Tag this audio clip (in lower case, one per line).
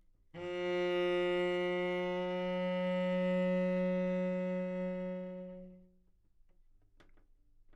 music
musical instrument
bowed string instrument